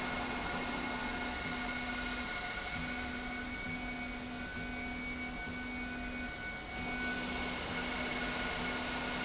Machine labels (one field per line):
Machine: slide rail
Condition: normal